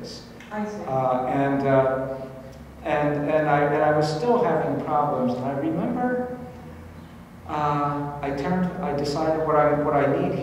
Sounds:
Speech

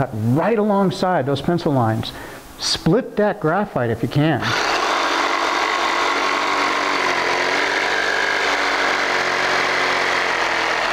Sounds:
Power tool, Tools

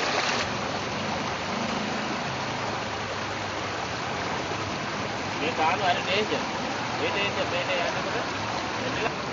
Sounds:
Speech, Vehicle, Stream

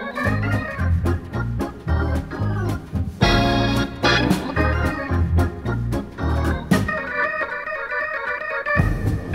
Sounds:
Organ

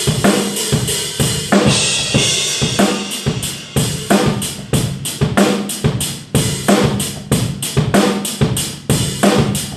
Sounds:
Cymbal, playing cymbal, Hi-hat

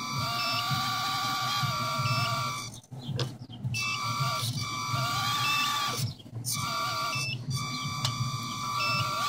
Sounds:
Reversing beeps

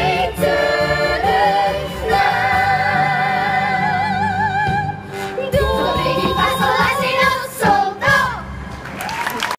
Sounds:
Music, Exciting music

